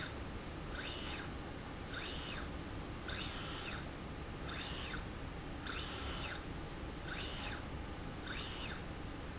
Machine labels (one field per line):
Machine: slide rail